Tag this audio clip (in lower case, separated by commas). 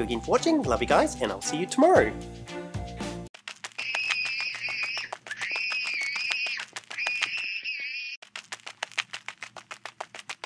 music, speech